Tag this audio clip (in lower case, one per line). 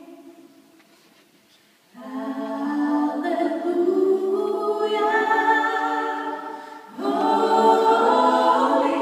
choir